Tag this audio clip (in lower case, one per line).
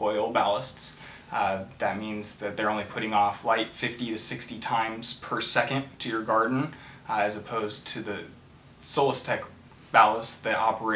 speech